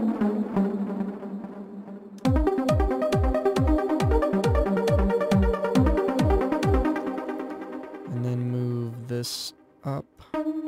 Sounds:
trance music, speech, music, electronic music

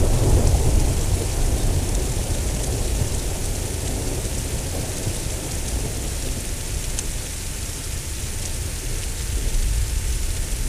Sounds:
rain

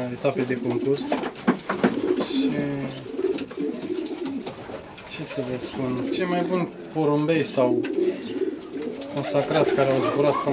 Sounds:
bird, pigeon

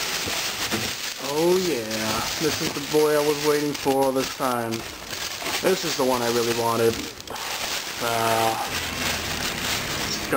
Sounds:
inside a small room, speech

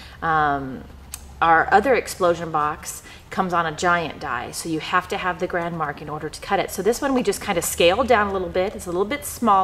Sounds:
speech

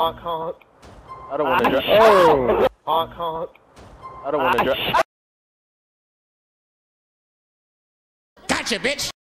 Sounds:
speech

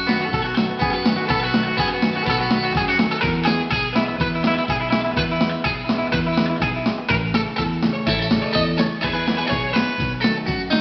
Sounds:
acoustic guitar, musical instrument, plucked string instrument, guitar, strum, bass guitar, music

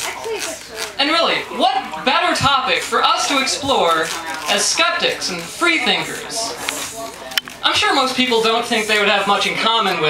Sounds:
female speech, speech

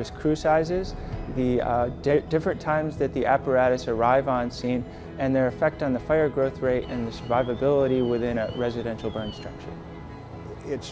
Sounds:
music, speech

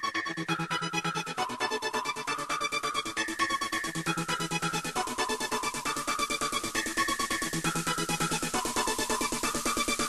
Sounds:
techno, trance music

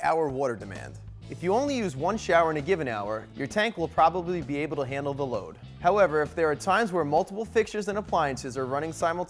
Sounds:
music, speech

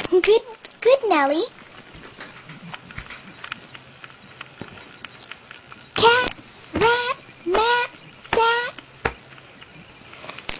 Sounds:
inside a small room, speech, kid speaking

